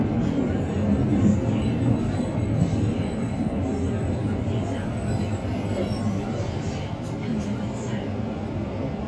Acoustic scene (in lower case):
bus